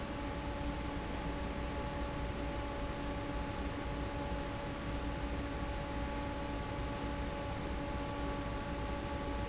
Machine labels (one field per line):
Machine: fan